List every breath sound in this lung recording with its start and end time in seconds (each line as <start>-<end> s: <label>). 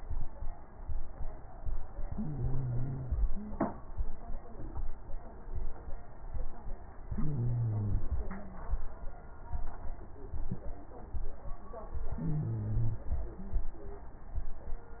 2.03-3.24 s: wheeze
2.05-3.29 s: inhalation
3.32-3.67 s: wheeze
3.32-4.13 s: exhalation
7.08-8.12 s: inhalation
7.13-8.03 s: wheeze
8.12-8.81 s: exhalation
8.21-8.72 s: wheeze
12.09-13.10 s: inhalation
12.16-13.10 s: wheeze
13.14-13.82 s: exhalation
13.36-13.79 s: wheeze